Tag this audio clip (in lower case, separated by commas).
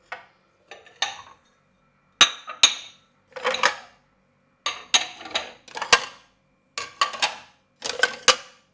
home sounds, dishes, pots and pans